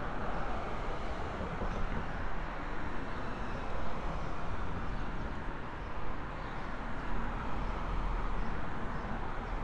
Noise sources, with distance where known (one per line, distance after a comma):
medium-sounding engine